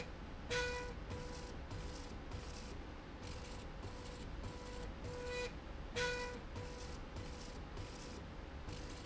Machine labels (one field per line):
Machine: slide rail